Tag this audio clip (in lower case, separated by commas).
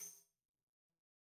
percussion, music, tambourine, musical instrument